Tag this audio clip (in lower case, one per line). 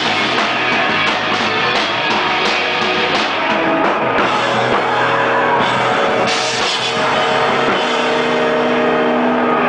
music